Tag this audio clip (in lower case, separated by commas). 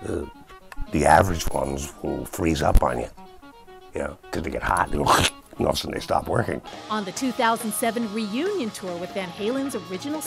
guitar, speech, music, musical instrument, plucked string instrument